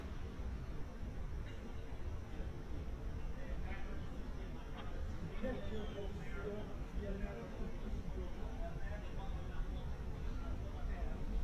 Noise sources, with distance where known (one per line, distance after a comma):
person or small group talking